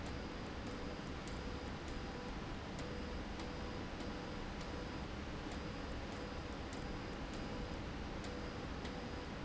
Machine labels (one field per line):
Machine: slide rail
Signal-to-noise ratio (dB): 0 dB